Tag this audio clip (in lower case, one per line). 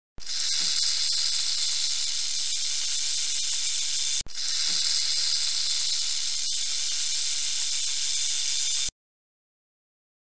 snake rattling